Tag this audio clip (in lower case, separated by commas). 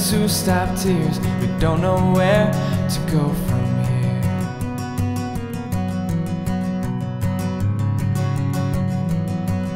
music